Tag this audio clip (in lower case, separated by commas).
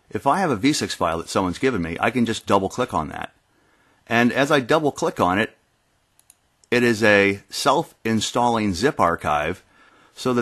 speech